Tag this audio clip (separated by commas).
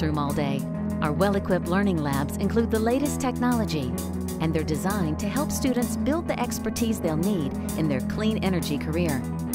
Speech, Music